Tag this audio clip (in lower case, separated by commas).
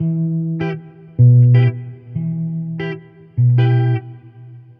plucked string instrument, electric guitar, musical instrument, music, guitar